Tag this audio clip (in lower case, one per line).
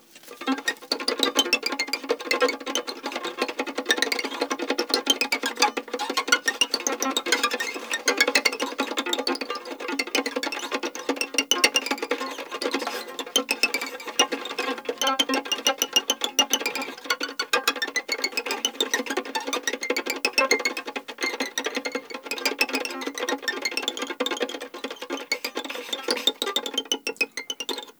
music
bowed string instrument
musical instrument